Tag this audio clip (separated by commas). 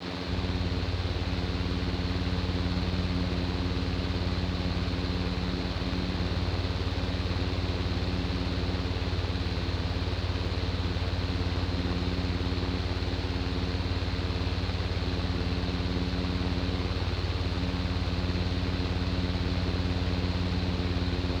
Mechanisms, Mechanical fan